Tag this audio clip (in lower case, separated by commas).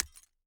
glass, shatter